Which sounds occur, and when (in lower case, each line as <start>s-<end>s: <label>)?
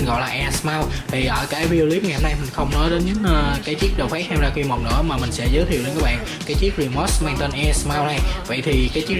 0.0s-0.9s: man speaking
0.0s-9.1s: music
0.9s-1.0s: breathing
1.0s-6.2s: man speaking
3.1s-6.2s: singing
6.2s-6.4s: breathing
6.4s-8.2s: man speaking
7.1s-8.3s: singing
8.2s-8.4s: breathing
8.4s-9.1s: man speaking